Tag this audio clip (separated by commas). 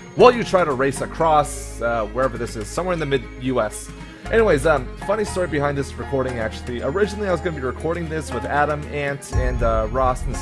Music, Speech